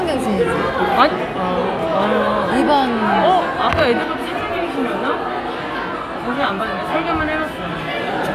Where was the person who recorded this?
in a crowded indoor space